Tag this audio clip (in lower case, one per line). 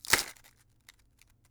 crushing